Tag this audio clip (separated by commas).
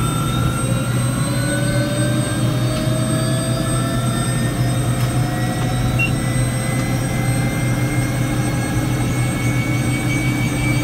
Vehicle, Engine, Accelerating, Aircraft